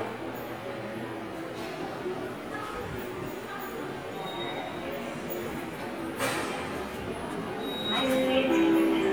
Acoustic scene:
subway station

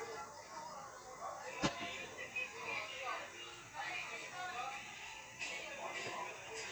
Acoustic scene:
restaurant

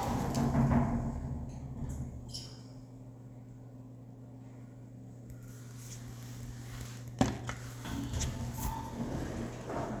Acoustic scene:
elevator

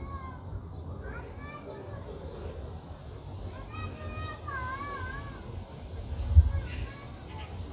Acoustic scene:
park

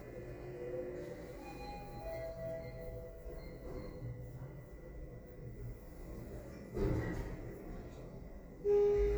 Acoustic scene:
elevator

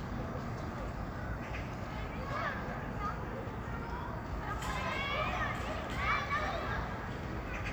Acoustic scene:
park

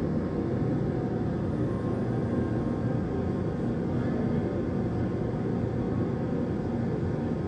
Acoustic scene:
subway train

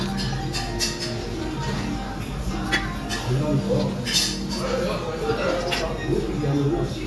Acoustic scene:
restaurant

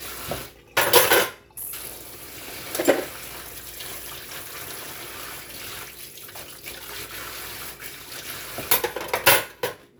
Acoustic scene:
kitchen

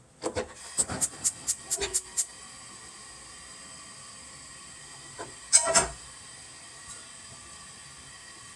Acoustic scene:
kitchen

